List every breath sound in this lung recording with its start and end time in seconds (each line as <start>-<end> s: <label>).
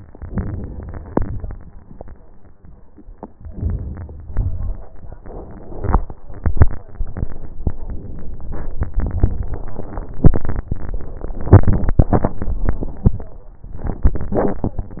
0.17-1.09 s: inhalation
1.09-1.70 s: exhalation
3.40-4.31 s: inhalation
4.31-5.04 s: exhalation
7.83-8.72 s: inhalation
8.96-9.85 s: exhalation